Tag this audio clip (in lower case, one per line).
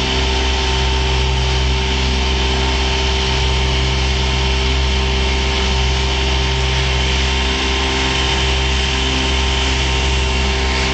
boat
motorboat
vehicle